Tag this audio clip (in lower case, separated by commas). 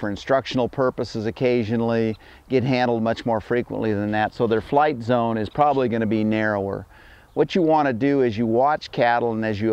speech